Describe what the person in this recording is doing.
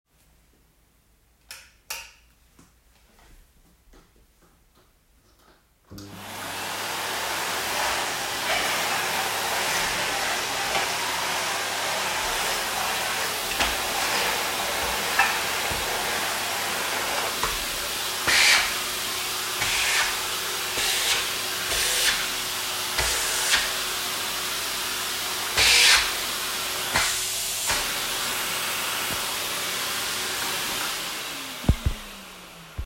I had a cleaning day so I started vacuuming the floor.